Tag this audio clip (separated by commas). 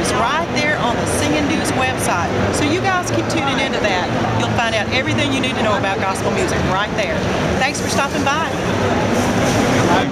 Speech